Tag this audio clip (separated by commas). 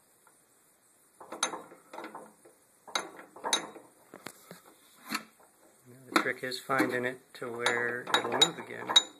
Creak